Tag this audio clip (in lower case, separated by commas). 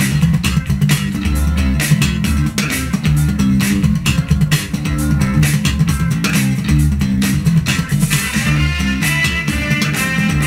funk, music